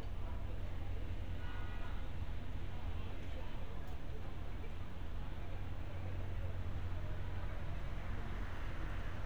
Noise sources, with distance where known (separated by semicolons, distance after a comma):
medium-sounding engine, far; car horn, far; unidentified human voice, far